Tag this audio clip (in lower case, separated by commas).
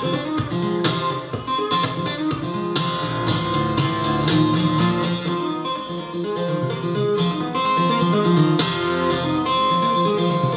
guitar, music, plucked string instrument, musical instrument